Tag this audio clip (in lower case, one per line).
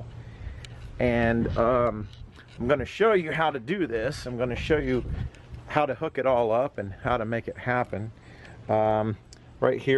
speech